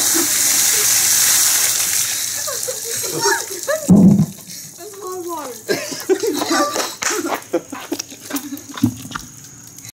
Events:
0.0s-0.3s: laughter
0.0s-9.9s: water
0.7s-1.0s: laughter
2.3s-3.9s: laughter
3.1s-3.5s: human sounds
3.9s-4.3s: generic impact sounds
4.3s-5.5s: footsteps
4.8s-5.6s: woman speaking
5.7s-7.4s: footsteps
6.5s-6.8s: generic impact sounds
7.7s-8.4s: generic impact sounds
8.7s-9.3s: generic impact sounds
9.4s-9.5s: tick
9.7s-9.9s: tick

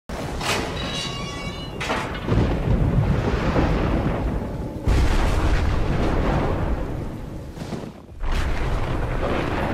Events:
0.0s-9.7s: wind
0.1s-9.7s: rain on surface
0.1s-4.4s: thunder
0.4s-2.1s: door
4.8s-7.1s: thunder
7.5s-7.9s: sound effect
8.2s-9.7s: thunder

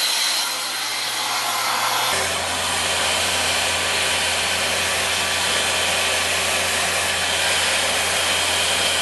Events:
0.0s-9.0s: hair dryer

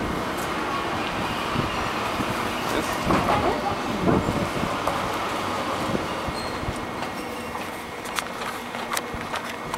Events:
0.0s-9.7s: mechanisms
0.0s-9.7s: wind
0.3s-0.4s: tick
1.0s-1.2s: tick
1.1s-1.7s: wind noise (microphone)
2.1s-2.8s: wind noise (microphone)
2.9s-3.8s: female speech
3.3s-4.8s: wind noise (microphone)
4.8s-4.9s: tick
5.7s-6.0s: wind noise (microphone)
6.2s-6.7s: wind noise (microphone)
6.3s-6.6s: squeal
6.6s-6.8s: walk
7.0s-7.1s: walk
7.5s-7.7s: walk
8.0s-8.2s: walk
8.4s-8.5s: walk
8.7s-9.0s: walk
9.1s-9.4s: wind noise (microphone)
9.3s-9.7s: walk

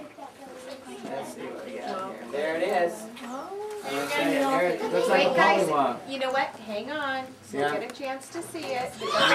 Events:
0.0s-1.2s: child speech
0.0s-9.3s: background noise
0.0s-9.3s: conversation
0.5s-0.7s: surface contact
1.1s-1.8s: male speech
1.8s-2.1s: female speech
1.8s-1.9s: generic impact sounds
2.3s-2.9s: male speech
3.1s-3.8s: human voice
3.1s-3.2s: generic impact sounds
3.2s-3.5s: bird song
3.7s-4.5s: surface contact
3.7s-5.6s: female speech
4.0s-4.7s: male speech
5.0s-5.9s: male speech
6.0s-7.3s: female speech
7.4s-7.7s: male speech
7.5s-8.9s: female speech
7.8s-8.0s: generic impact sounds

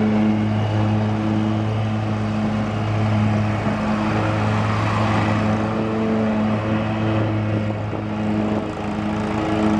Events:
0.0s-9.7s: airplane
0.0s-9.7s: lawn mower
0.0s-9.7s: wind
7.5s-8.1s: wind noise (microphone)
8.5s-8.7s: wind noise (microphone)

